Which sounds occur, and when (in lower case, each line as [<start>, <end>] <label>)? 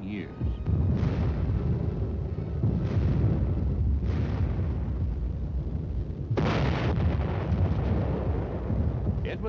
[0.00, 9.45] wind
[0.28, 2.71] music
[4.00, 5.02] artillery fire
[6.36, 9.08] explosion